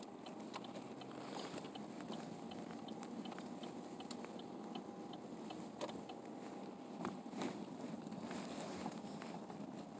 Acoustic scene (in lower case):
car